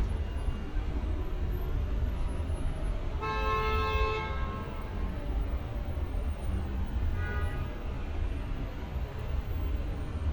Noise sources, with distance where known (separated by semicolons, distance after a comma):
car horn, near